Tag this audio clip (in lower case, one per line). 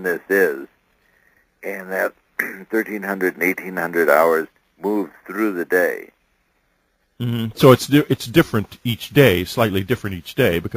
speech